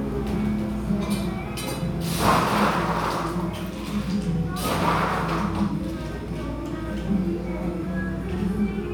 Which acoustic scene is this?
cafe